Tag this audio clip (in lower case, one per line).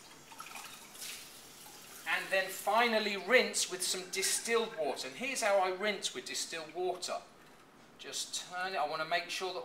inside a small room
speech
faucet